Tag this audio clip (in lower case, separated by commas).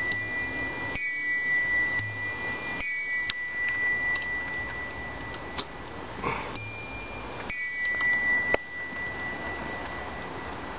inside a small room, clock